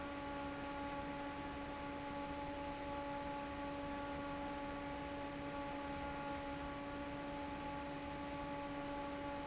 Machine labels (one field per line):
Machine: fan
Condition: normal